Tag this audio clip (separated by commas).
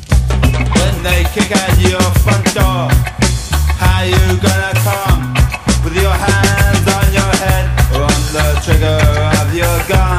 Music, Reggae